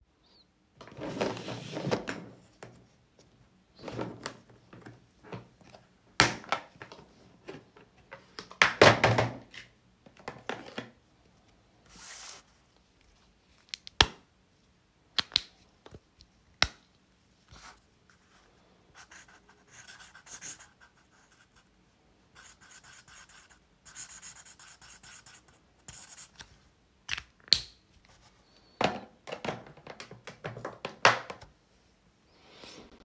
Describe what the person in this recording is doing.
I sat at the desk and wrote notes on a piece of paper while handling small objects on the desk.